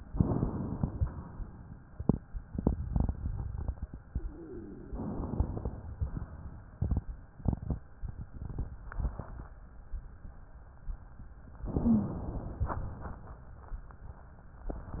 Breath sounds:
0.00-1.07 s: inhalation
1.07-1.91 s: exhalation
4.86-5.80 s: inhalation
5.80-6.73 s: exhalation
11.62-12.65 s: inhalation
11.75-12.16 s: wheeze
12.65-13.33 s: exhalation

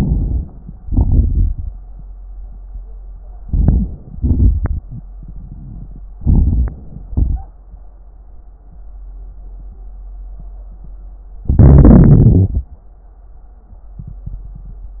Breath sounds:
0.00-0.51 s: inhalation
0.00-0.51 s: crackles
0.81-1.72 s: exhalation
0.81-1.72 s: crackles
3.45-3.98 s: inhalation
4.18-5.04 s: exhalation
4.18-5.04 s: crackles
6.19-6.75 s: inhalation
6.19-6.75 s: crackles
7.08-7.52 s: exhalation

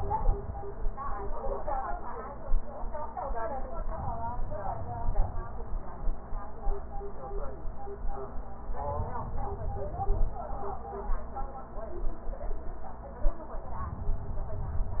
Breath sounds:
3.69-5.49 s: inhalation
3.83-5.52 s: rhonchi
8.63-10.44 s: inhalation
8.73-10.16 s: rhonchi

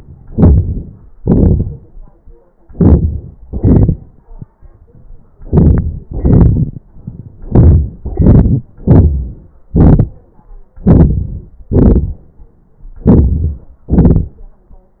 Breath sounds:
0.25-1.04 s: inhalation
1.05-2.50 s: exhalation
2.60-3.45 s: inhalation
3.44-4.69 s: exhalation
5.39-6.07 s: inhalation
6.04-7.37 s: exhalation
6.04-7.37 s: crackles
7.40-7.99 s: inhalation
8.01-8.77 s: exhalation
8.01-8.77 s: crackles
8.78-9.62 s: inhalation
9.64-10.75 s: exhalation
10.76-11.66 s: inhalation
11.67-12.87 s: exhalation
12.90-13.86 s: inhalation
13.89-15.00 s: exhalation

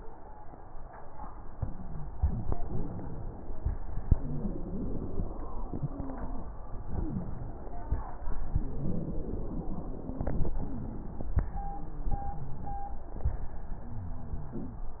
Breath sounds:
2.17-3.44 s: inhalation
2.17-3.44 s: wheeze
3.65-5.70 s: exhalation
3.65-5.70 s: wheeze
6.84-7.94 s: inhalation
6.84-7.94 s: wheeze
8.44-11.33 s: exhalation
8.44-11.33 s: wheeze

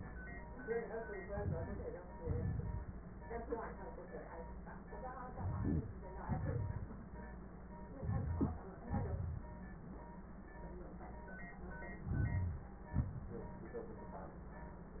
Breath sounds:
1.26-1.68 s: inhalation
1.26-1.68 s: crackles
2.16-2.88 s: exhalation
2.16-2.88 s: crackles
5.34-5.92 s: inhalation
6.20-6.92 s: exhalation
6.20-6.92 s: crackles
7.96-8.67 s: inhalation
8.80-9.51 s: exhalation
12.02-12.73 s: inhalation
12.02-12.73 s: crackles
12.91-13.32 s: exhalation

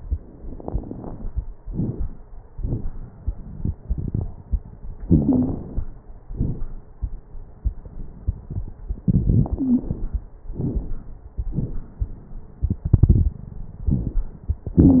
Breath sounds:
1.62-2.15 s: inhalation
1.62-2.15 s: crackles
2.47-2.95 s: exhalation
2.47-2.95 s: crackles
5.07-5.64 s: wheeze
5.07-5.85 s: inhalation
6.31-6.73 s: exhalation
6.31-6.73 s: crackles
9.03-10.08 s: inhalation
9.59-9.88 s: wheeze
10.55-11.23 s: exhalation
10.55-11.23 s: crackles
13.91-14.21 s: wheeze

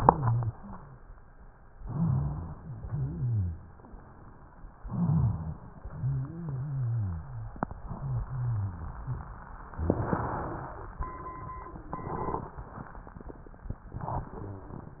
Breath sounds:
0.00-1.01 s: wheeze
1.80-2.81 s: inhalation
1.80-2.81 s: wheeze
2.86-3.87 s: exhalation
2.86-3.87 s: wheeze
4.78-5.79 s: inhalation
4.78-5.79 s: wheeze
5.86-7.67 s: exhalation
5.86-7.67 s: wheeze
7.82-9.36 s: wheeze

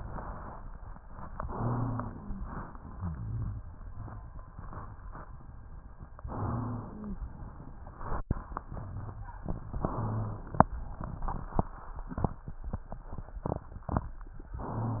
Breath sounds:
1.42-2.51 s: inhalation
1.42-2.51 s: wheeze
2.87-4.48 s: exhalation
2.87-4.48 s: rhonchi
6.17-7.25 s: inhalation
6.17-7.25 s: wheeze
9.62-10.70 s: inhalation
9.62-10.70 s: wheeze

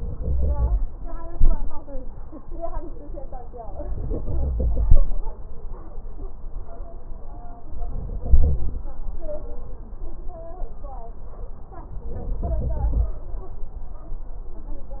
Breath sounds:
0.00-0.79 s: inhalation
4.05-5.07 s: inhalation
7.84-8.86 s: inhalation
12.13-13.14 s: inhalation

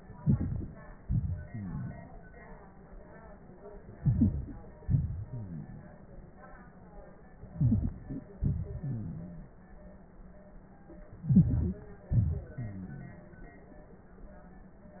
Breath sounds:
0.19-0.78 s: rhonchi
0.19-0.78 s: inhalation
1.02-2.34 s: exhalation
1.46-2.15 s: wheeze
3.97-4.73 s: inhalation
3.98-4.71 s: rhonchi
4.82-6.02 s: exhalation
5.31-5.87 s: wheeze
7.53-8.30 s: inhalation
7.53-8.30 s: rhonchi
7.53-8.29 s: inhalation
8.39-9.56 s: exhalation
8.80-9.53 s: wheeze
11.23-11.87 s: rhonchi
12.16-13.62 s: exhalation
12.54-13.24 s: wheeze

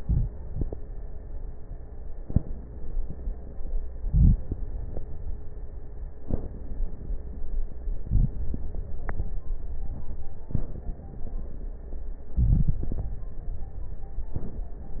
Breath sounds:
0.00-0.29 s: inhalation
4.05-4.38 s: inhalation
8.03-8.36 s: inhalation
12.34-12.82 s: inhalation
12.34-12.82 s: crackles

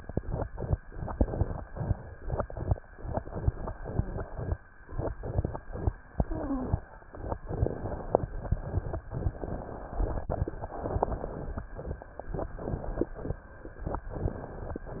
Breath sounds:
6.21-6.81 s: exhalation
6.21-6.81 s: wheeze
7.48-8.22 s: inhalation
8.22-9.03 s: exhalation
9.39-10.25 s: inhalation
10.73-11.60 s: exhalation

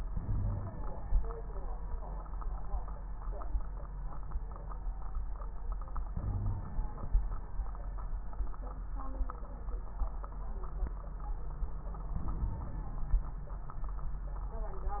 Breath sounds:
0.11-1.23 s: inhalation
0.22-0.71 s: wheeze
6.09-6.97 s: inhalation
6.19-6.66 s: wheeze
12.18-13.26 s: inhalation
12.18-13.26 s: crackles

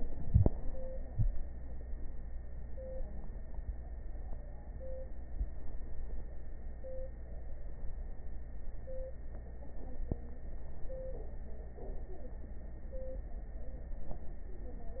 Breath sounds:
0.14-0.52 s: inhalation
1.03-1.32 s: exhalation

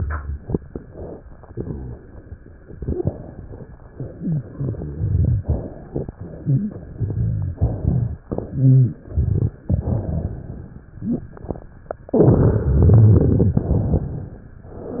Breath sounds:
0.64-1.27 s: exhalation
0.64-1.27 s: crackles
1.50-2.35 s: exhalation
1.50-2.35 s: crackles
2.62-3.73 s: inhalation
2.62-3.73 s: crackles
3.96-5.35 s: exhalation
3.96-5.35 s: crackles
5.43-6.15 s: crackles
5.45-6.15 s: inhalation
6.15-7.54 s: exhalation
6.19-7.56 s: crackles
7.57-8.20 s: inhalation
7.57-8.20 s: crackles
8.29-9.56 s: exhalation
8.29-9.56 s: crackles
9.65-10.83 s: inhalation
12.04-14.56 s: exhalation
12.04-14.56 s: crackles
14.64-15.00 s: inhalation

